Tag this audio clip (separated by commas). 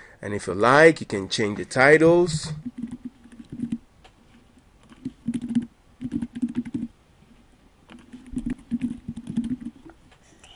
Typing, Speech, Computer keyboard